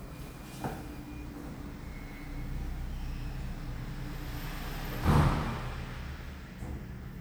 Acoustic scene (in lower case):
elevator